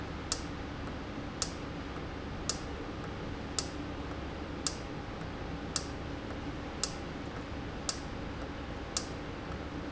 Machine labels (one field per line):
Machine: valve